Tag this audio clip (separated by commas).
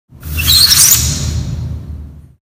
Squeak